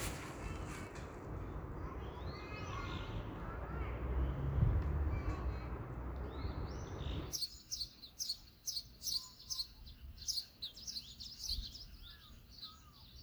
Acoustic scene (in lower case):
park